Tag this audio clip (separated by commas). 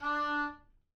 Music, Wind instrument, Musical instrument